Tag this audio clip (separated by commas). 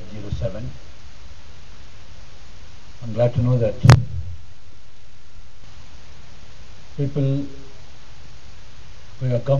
man speaking, Speech